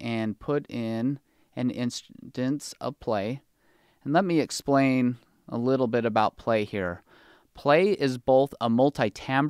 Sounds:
Speech

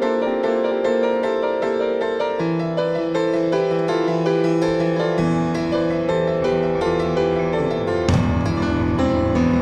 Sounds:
Musical instrument, Harpsichord

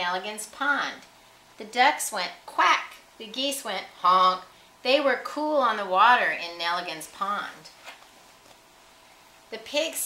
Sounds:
Speech

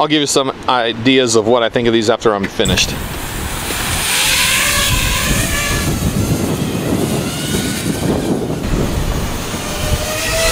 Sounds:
Speech

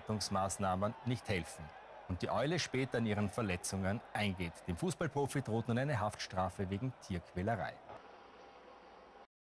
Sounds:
Speech

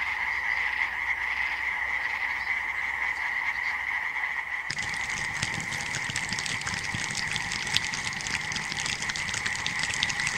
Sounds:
frog croaking

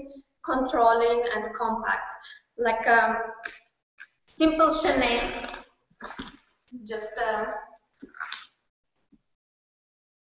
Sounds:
Speech

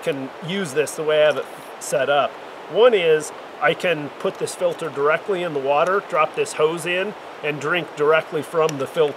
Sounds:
Speech

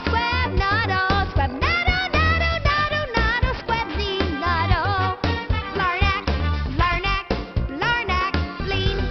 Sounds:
Male singing, Music

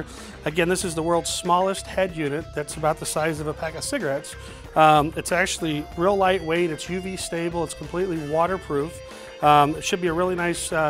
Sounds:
Music, Speech

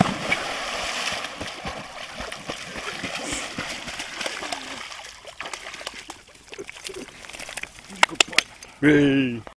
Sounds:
Domestic animals, Animal, Dog, Speech

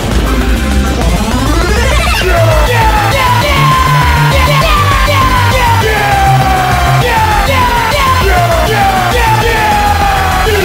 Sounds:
Music

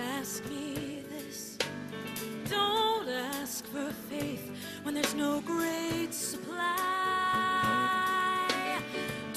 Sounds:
Music, Female singing

